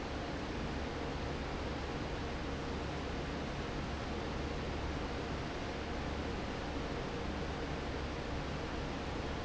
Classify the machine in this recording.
fan